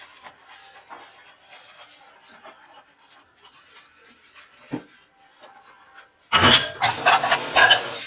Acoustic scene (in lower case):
kitchen